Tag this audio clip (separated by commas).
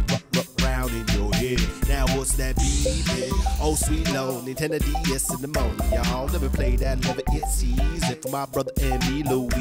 Music